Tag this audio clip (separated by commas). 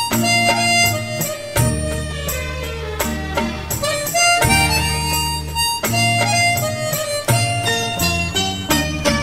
Wind instrument, Harmonica